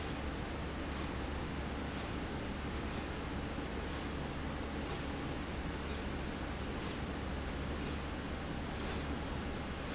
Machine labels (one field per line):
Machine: slide rail